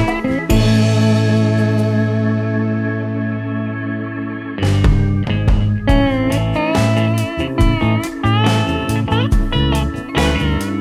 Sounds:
playing steel guitar

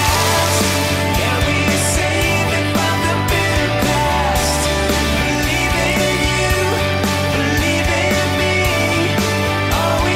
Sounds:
music

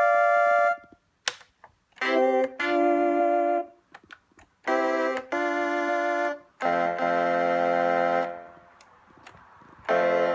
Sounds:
musical instrument
music
keyboard (musical)
electric piano
piano

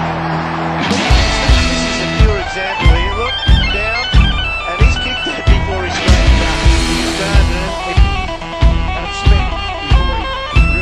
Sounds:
bagpipes

